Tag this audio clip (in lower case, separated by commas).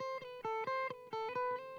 musical instrument, guitar, plucked string instrument, electric guitar, music